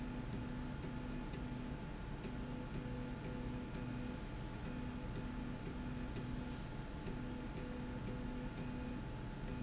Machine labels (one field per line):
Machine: slide rail